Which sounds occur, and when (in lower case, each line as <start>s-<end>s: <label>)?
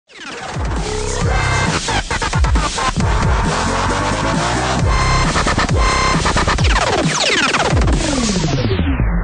0.0s-9.2s: music